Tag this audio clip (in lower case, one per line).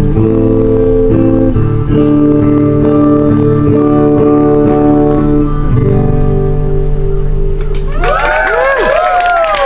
inside a public space
inside a large room or hall
music